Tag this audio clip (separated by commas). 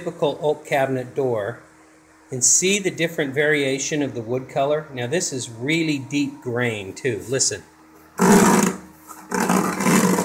Speech, Wood